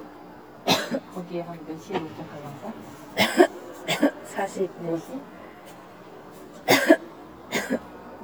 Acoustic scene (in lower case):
subway station